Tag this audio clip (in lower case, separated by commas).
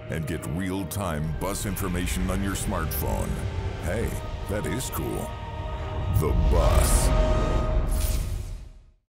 speech, music